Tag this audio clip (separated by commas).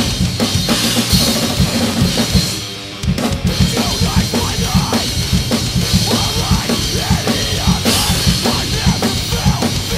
Drum, Musical instrument, Drum kit, Music, Bass drum